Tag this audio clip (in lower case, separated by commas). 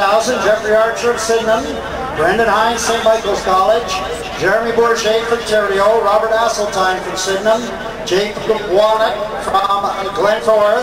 speech